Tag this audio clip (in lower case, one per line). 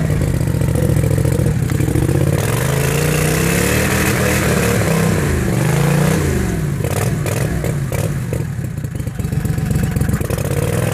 vehicle
outside, rural or natural